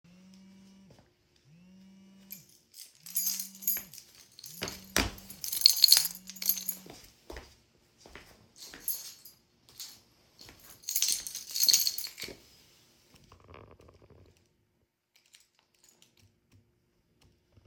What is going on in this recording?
My phone started ringing while I was walking in the room with my keychain. I stopped the phone and walked away.